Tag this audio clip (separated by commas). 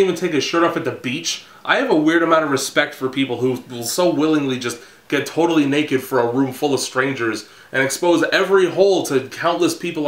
Speech